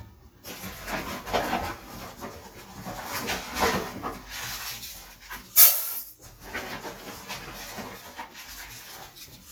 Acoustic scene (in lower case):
kitchen